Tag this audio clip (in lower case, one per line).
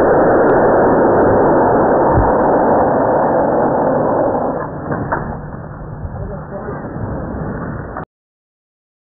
speech